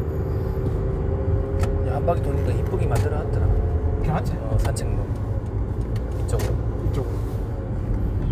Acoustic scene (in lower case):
car